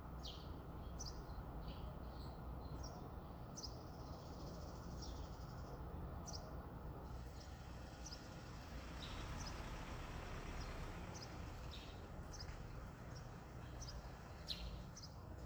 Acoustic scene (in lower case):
residential area